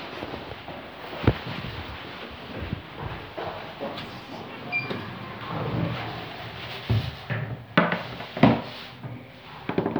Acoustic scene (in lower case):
elevator